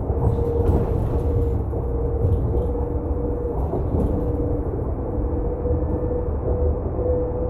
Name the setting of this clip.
bus